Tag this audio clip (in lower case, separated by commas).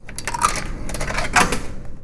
home sounds, coin (dropping)